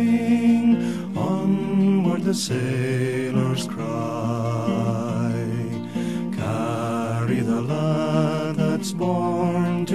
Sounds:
music

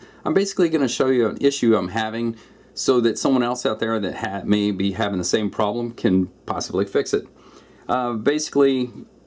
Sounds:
speech

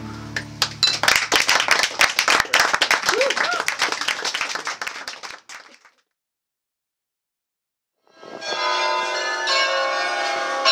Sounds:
silence, inside a small room

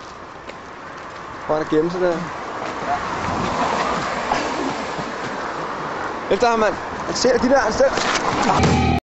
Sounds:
speech, music

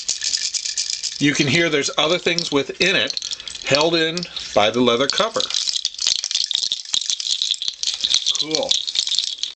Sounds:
speech, rattle (instrument), rattle, inside a small room

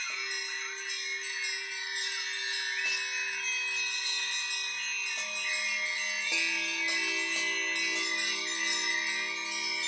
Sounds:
wind chime, chime

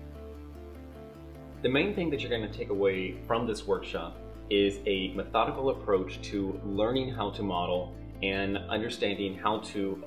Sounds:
music, speech

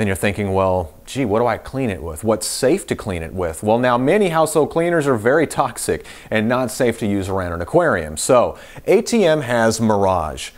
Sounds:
speech

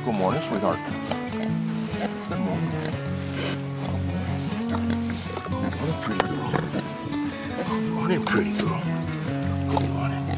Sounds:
speech, oink, music

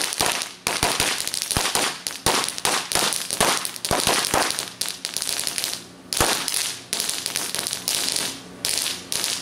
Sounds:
lighting firecrackers

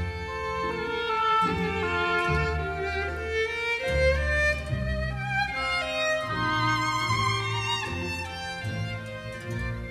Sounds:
musical instrument, violin, music

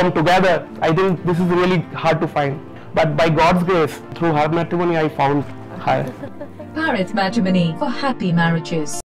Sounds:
music, speech

